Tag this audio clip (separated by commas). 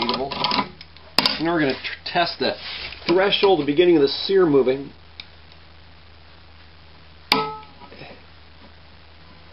inside a small room, Speech